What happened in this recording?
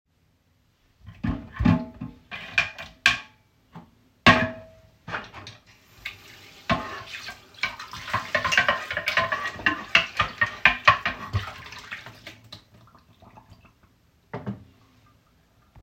I put some dishes into the sink. Then, I switched on the water and washed those dishes. Afterwards, I switched off the water and left everything as it was in the sink.